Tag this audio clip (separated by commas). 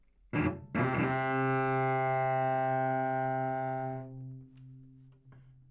Musical instrument, Bowed string instrument, Music